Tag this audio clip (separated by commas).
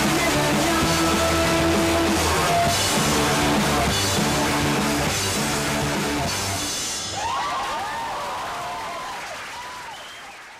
Singing